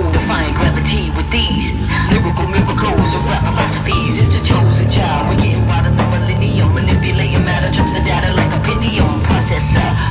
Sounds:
Music

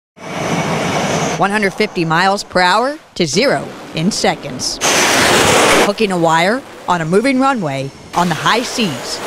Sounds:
Vehicle, airplane

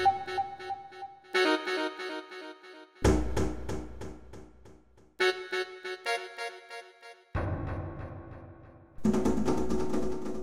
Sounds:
Percussion

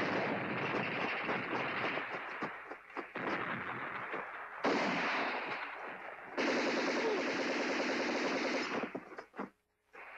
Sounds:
Machine gun

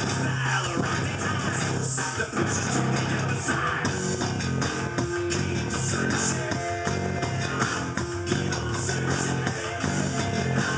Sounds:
Musical instrument, inside a large room or hall, Music, Plucked string instrument, Guitar

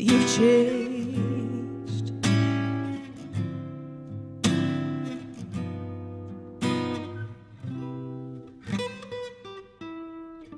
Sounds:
Singing, Flamenco, Music

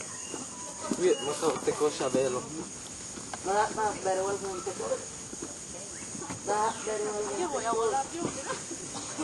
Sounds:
Speech

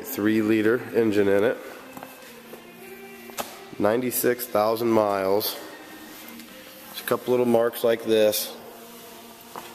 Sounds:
Music, Speech

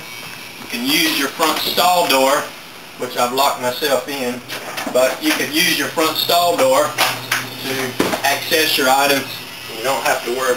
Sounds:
Speech

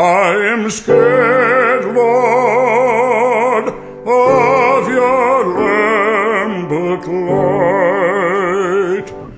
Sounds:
Music

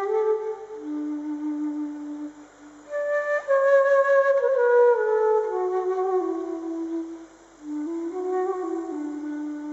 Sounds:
playing flute

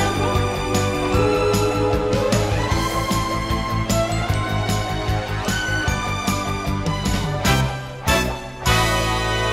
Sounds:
Music

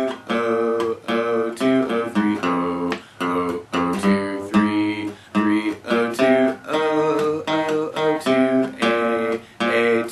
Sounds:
Guitar, Acoustic guitar, Plucked string instrument, Singing, Music, Musical instrument

